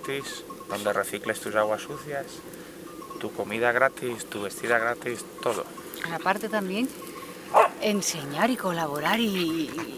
A man and woman speak and wind blows lightly